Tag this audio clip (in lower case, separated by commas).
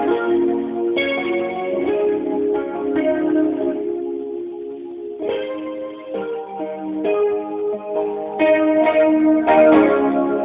keyboard (musical), organ, piano, music, musical instrument, playing piano